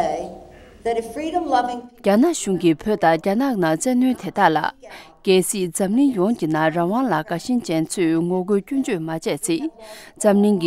Speech uttered by an adult female human